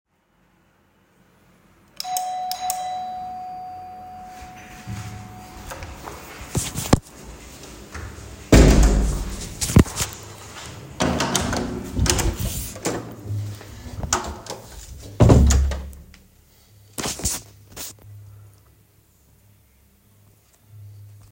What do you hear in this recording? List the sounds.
bell ringing, door